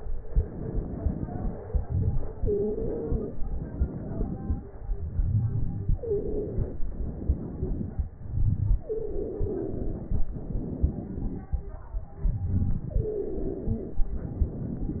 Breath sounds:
Inhalation: 0.00-1.64 s, 3.45-4.79 s, 6.85-8.21 s, 10.27-12.09 s, 14.12-15.00 s
Exhalation: 1.64-3.48 s, 4.81-6.83 s, 8.18-10.30 s, 12.07-14.12 s
Stridor: 2.35-3.28 s, 5.96-6.62 s, 8.85-10.04 s, 12.92-14.11 s
Crackles: 0.24-2.31 s, 3.45-4.77 s, 6.85-8.21 s, 10.27-12.09 s

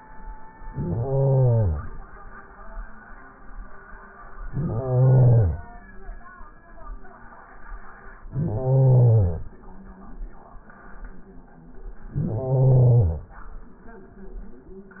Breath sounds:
Inhalation: 0.59-2.09 s, 4.20-5.70 s, 8.18-9.59 s, 12.06-13.34 s

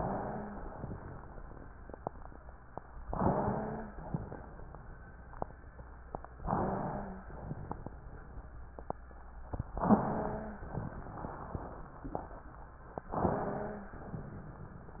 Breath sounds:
Inhalation: 3.11-4.06 s, 6.41-7.29 s, 9.84-10.70 s, 13.07-13.95 s
Exhalation: 4.06-4.82 s, 7.29-7.91 s, 10.70-11.30 s, 13.97-14.70 s
Wheeze: 0.00-0.60 s, 3.11-3.98 s, 6.41-7.29 s, 9.86-10.62 s, 10.70-11.36 s, 13.07-13.95 s
Crackles: 7.29-7.91 s

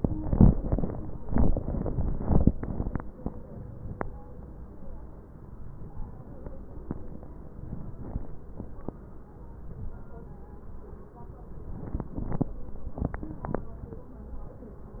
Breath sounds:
Inhalation: 7.51-8.28 s, 9.39-10.16 s
Wheeze: 0.00-0.25 s
Crackles: 7.51-8.25 s, 9.39-10.16 s

